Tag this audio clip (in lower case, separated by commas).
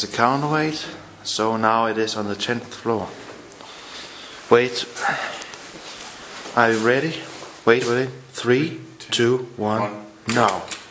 inside a large room or hall, speech